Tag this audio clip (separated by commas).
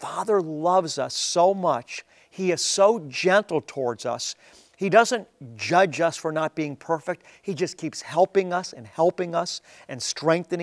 Speech